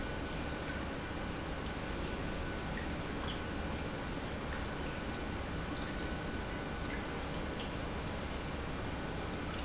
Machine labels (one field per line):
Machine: pump